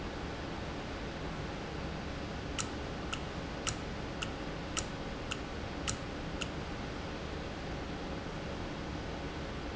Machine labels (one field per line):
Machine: valve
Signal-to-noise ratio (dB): -6 dB